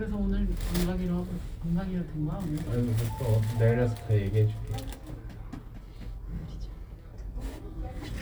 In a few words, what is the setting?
elevator